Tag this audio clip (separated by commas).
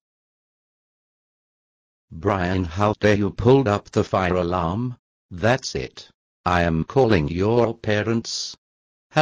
Speech